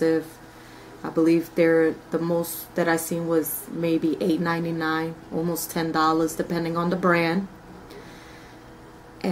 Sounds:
speech

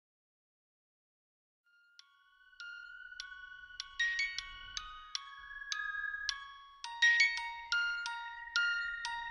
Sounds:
music, glockenspiel

